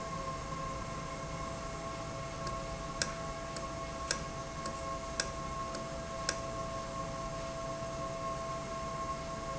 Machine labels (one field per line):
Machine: valve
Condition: normal